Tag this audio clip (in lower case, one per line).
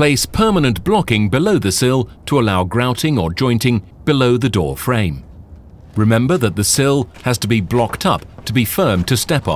speech